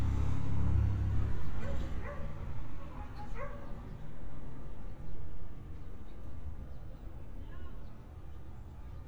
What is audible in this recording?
unidentified human voice, dog barking or whining